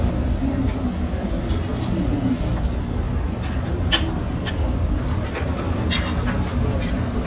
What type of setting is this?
restaurant